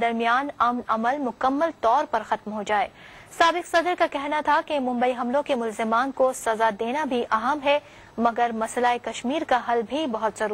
A woman speaking